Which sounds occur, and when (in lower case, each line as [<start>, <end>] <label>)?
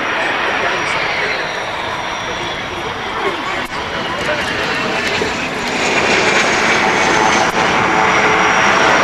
[0.00, 0.96] male speech
[0.00, 9.03] aircraft engine
[1.20, 1.37] male speech
[2.15, 3.63] male speech
[3.92, 5.37] male speech